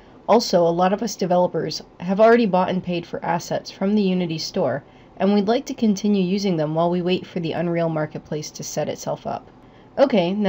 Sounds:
speech

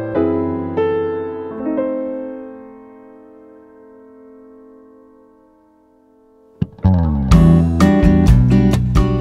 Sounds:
music, electric piano

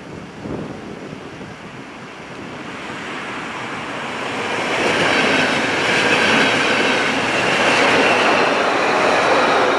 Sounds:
train, railroad car, vehicle, rail transport, train wheels squealing

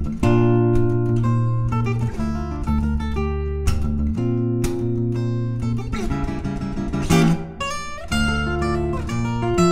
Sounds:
musical instrument, guitar, plucked string instrument, music, acoustic guitar, playing acoustic guitar

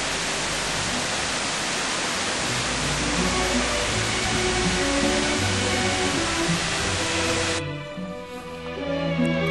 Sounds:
pink noise

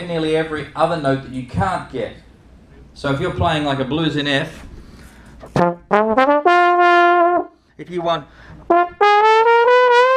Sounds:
music, speech

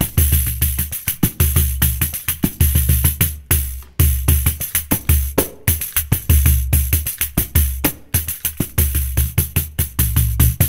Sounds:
playing tambourine

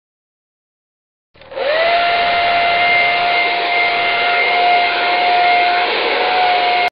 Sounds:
clatter

